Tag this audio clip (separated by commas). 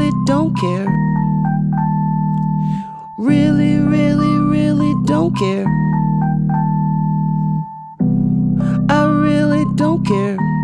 Music, inside a small room